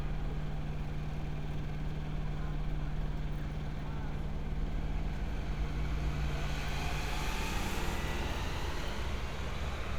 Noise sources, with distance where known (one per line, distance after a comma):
large-sounding engine, far